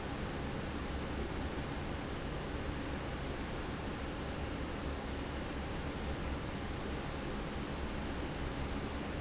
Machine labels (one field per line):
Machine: fan